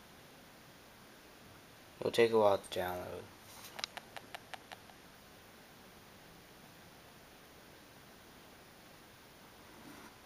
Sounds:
speech

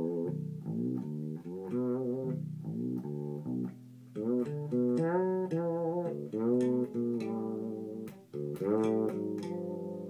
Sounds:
musical instrument
bowed string instrument
music
plucked string instrument
bass guitar
guitar

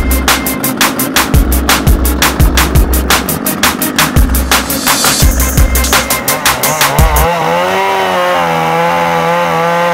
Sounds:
chainsaw
music

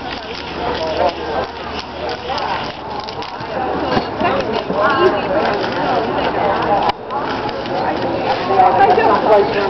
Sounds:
speech

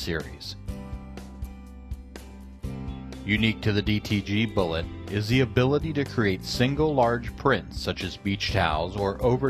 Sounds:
speech
music

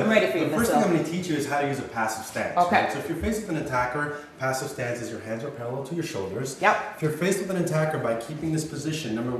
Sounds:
speech

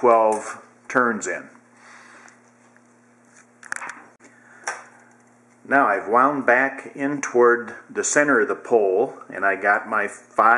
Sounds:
speech

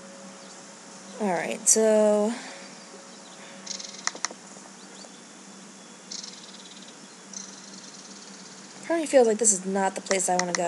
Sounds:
speech

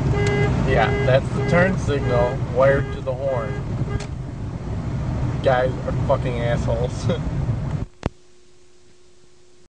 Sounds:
speech
vehicle
car

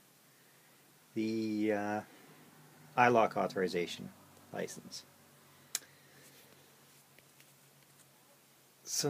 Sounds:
speech

